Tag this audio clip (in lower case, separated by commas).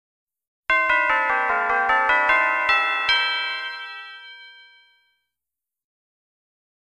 music